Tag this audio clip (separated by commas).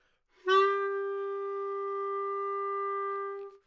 Music, Musical instrument, Wind instrument